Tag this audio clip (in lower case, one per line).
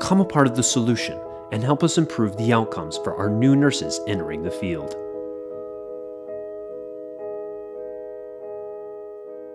piano